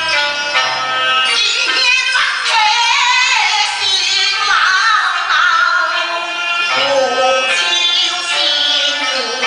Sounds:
Music

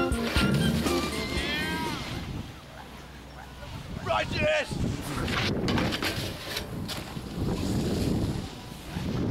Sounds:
Speech, Music

